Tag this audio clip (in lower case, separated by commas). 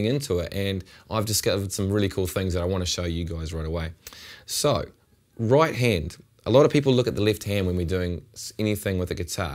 speech